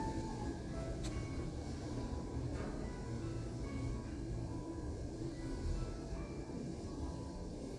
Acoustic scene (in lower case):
elevator